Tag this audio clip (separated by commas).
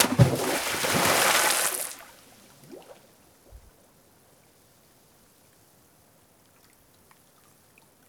Liquid, splatter